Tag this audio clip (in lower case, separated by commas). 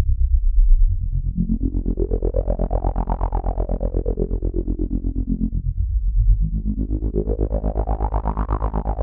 music, musical instrument, synthesizer